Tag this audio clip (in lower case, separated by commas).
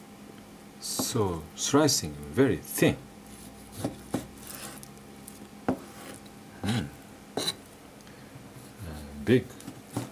speech